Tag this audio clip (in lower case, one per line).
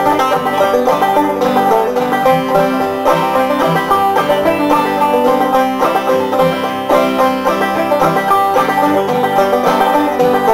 music